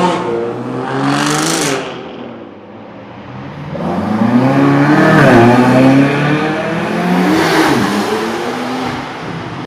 A motor vehicle engine is running and is revved up and accelerated